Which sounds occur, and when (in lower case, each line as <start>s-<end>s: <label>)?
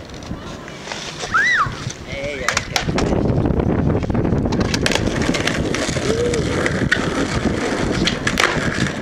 0.0s-9.0s: skateboard
0.0s-9.0s: wind
0.2s-0.6s: wind noise (microphone)
0.3s-0.8s: human voice
1.3s-1.7s: screaming
1.6s-1.8s: wind noise (microphone)
2.0s-2.4s: wind noise (microphone)
2.0s-2.6s: male speech
2.3s-2.7s: screaming
2.5s-7.5s: wind noise (microphone)
6.0s-6.4s: human voice
7.7s-8.4s: wind noise (microphone)
8.5s-9.0s: wind noise (microphone)